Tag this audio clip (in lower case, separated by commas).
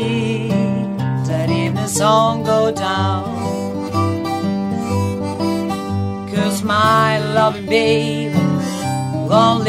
music, acoustic guitar